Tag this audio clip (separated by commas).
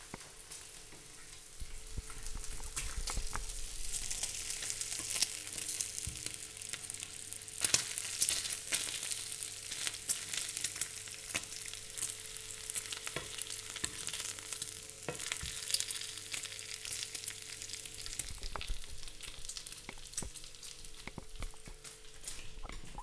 home sounds, Frying (food)